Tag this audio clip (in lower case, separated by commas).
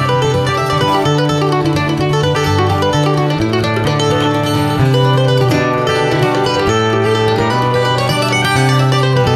music, mandolin